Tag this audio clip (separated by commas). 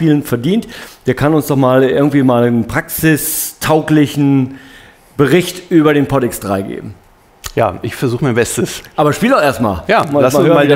Speech